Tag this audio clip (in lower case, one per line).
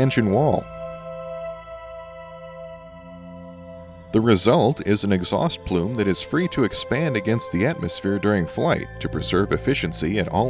music
speech